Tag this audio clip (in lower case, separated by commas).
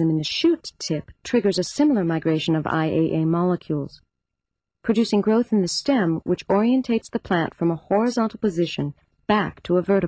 speech